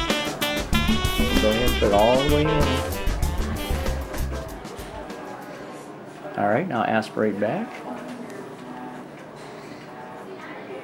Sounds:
inside a small room, speech, music

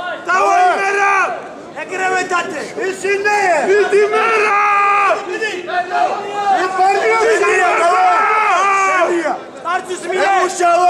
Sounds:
speech

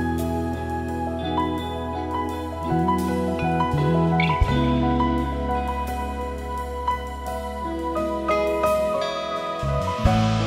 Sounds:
music, tender music, christian music

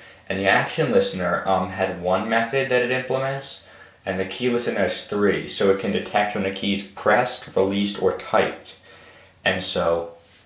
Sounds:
speech

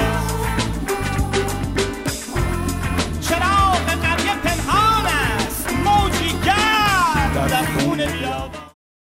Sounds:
music, exciting music

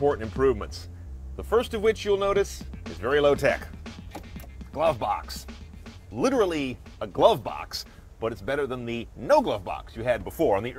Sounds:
music, speech

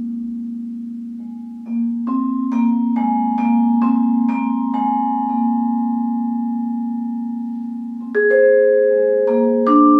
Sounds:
playing vibraphone

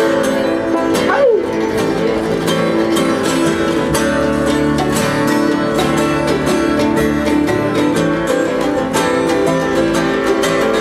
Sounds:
music, speech, country, flamenco

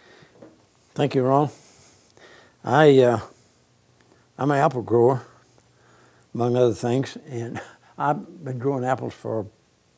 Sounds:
speech

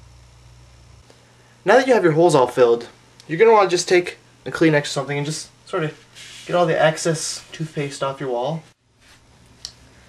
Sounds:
speech

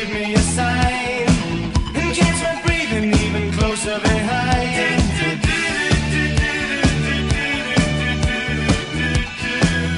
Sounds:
music

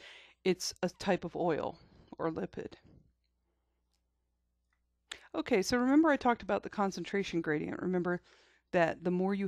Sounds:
speech

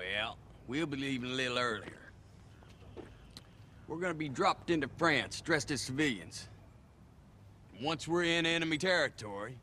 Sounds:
speech, male speech, narration

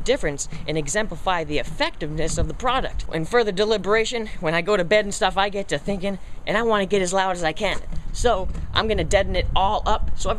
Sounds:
speech

